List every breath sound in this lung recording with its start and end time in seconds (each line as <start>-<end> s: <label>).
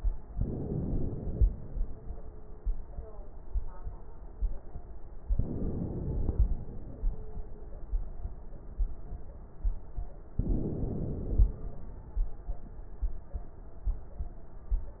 0.28-1.45 s: inhalation
5.34-6.52 s: inhalation
10.37-11.55 s: inhalation